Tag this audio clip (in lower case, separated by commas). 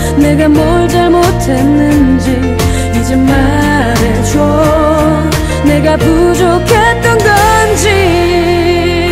music